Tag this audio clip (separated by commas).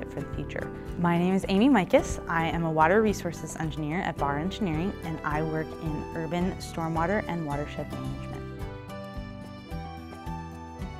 Speech, Music